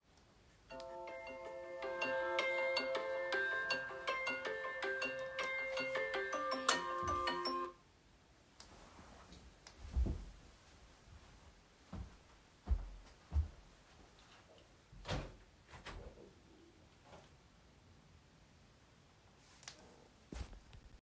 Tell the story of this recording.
My alarm wakes me up in the bedroom. I turn on the light switch, stand up, and walk to the window. I open the window to let fresh air into the room.